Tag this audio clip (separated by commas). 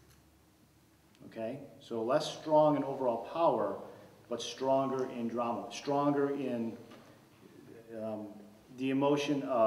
Speech